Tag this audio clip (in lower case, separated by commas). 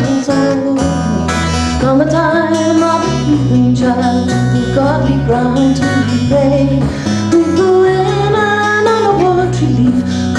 music